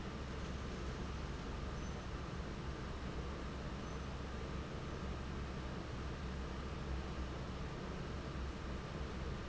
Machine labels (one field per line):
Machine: fan